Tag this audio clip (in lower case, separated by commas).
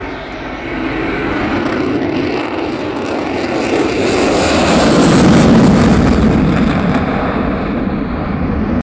aircraft, vehicle